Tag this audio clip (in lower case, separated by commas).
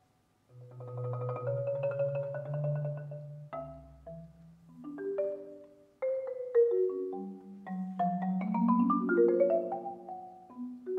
xylophone, playing marimba, music